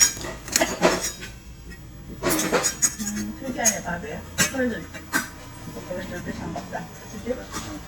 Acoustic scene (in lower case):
restaurant